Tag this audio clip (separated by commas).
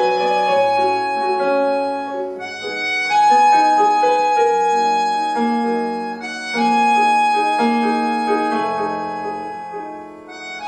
Keyboard (musical), Music